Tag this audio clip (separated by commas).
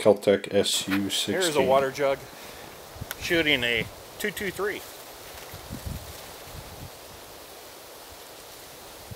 Speech